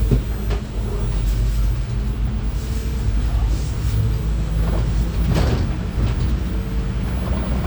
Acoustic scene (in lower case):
bus